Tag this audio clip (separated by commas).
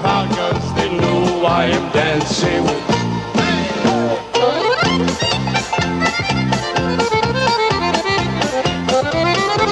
Music